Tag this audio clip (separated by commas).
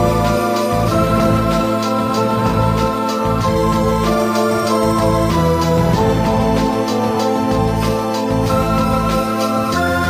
Music, Theme music